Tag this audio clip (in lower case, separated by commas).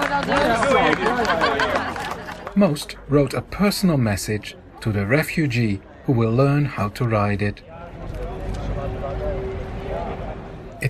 speech